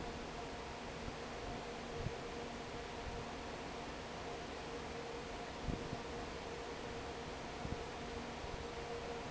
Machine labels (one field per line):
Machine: fan